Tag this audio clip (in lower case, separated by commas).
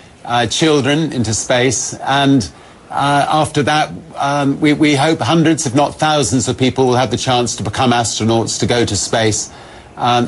speech